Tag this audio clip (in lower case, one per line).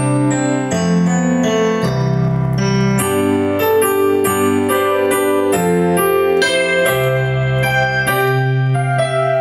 electric piano
piano
keyboard (musical)